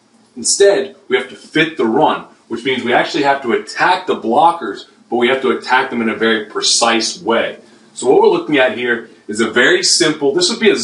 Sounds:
speech

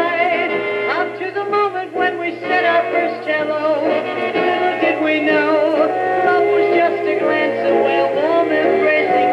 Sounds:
synthetic singing
music
radio

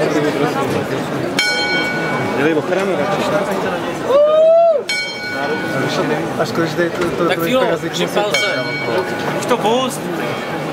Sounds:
speech

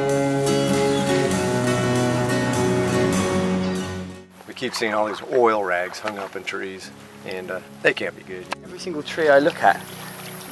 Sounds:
speech
music

